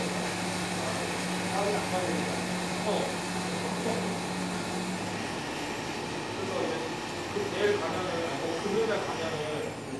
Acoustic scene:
cafe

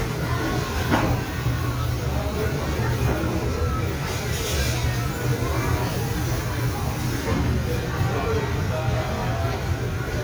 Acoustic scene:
restaurant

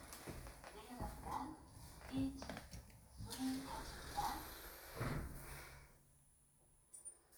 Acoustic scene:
elevator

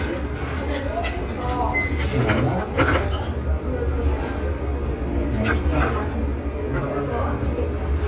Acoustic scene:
restaurant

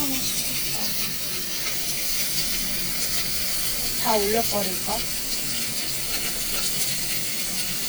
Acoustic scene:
restaurant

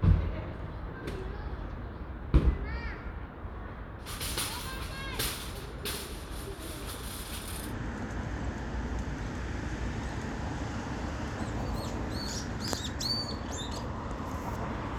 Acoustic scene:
residential area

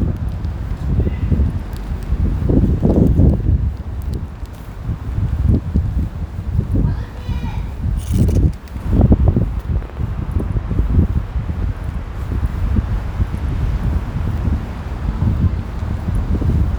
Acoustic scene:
residential area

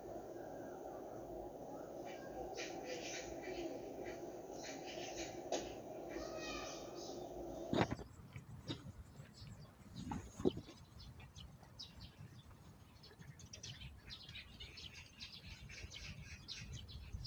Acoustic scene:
park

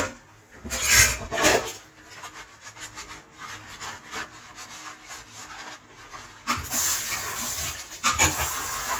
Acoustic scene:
kitchen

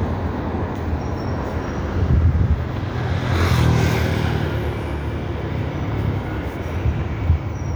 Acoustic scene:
street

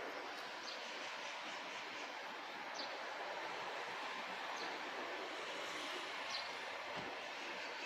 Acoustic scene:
park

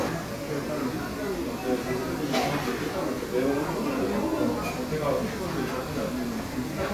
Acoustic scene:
crowded indoor space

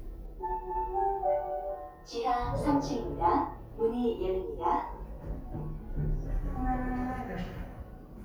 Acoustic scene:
elevator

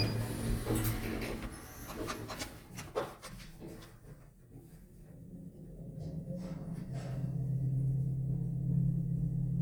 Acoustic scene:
elevator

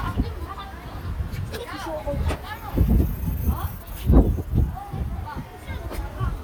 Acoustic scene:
residential area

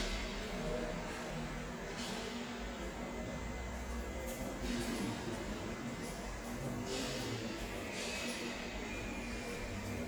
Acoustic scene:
subway station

